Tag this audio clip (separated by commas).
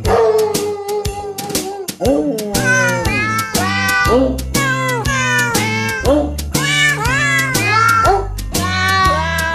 Music